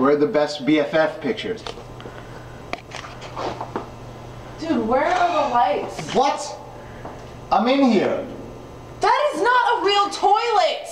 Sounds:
speech

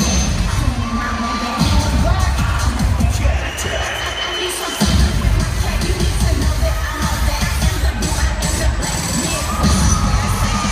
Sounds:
crowd, music

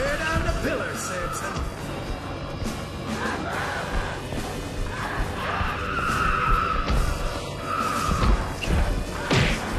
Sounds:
speech, music

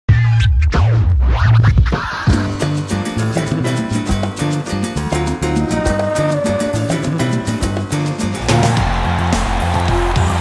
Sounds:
music

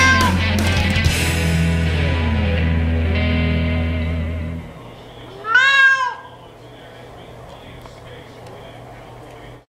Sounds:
music, caterwaul

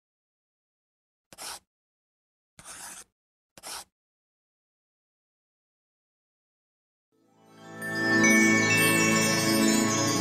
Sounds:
music

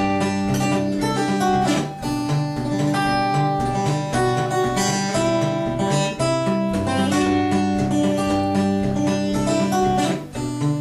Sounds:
plucked string instrument, guitar, music, strum, musical instrument

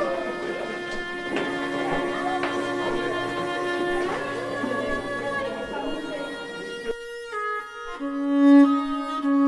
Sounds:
speech, music

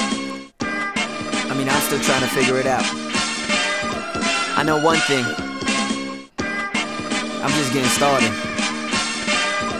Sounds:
music, speech

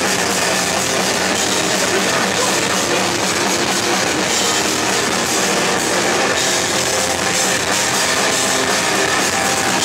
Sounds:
music, speech

